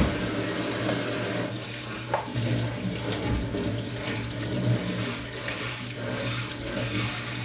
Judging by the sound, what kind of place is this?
kitchen